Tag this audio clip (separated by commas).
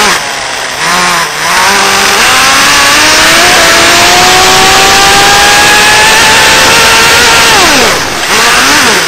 Vehicle, Car